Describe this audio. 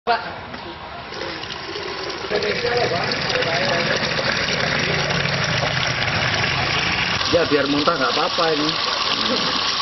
People are talking in the background, water flows from a faucet and splashes and gurgles into a container, and an adult male speaks in the foreground